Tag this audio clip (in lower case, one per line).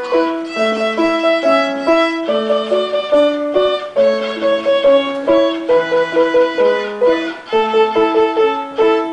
musical instrument
music
fiddle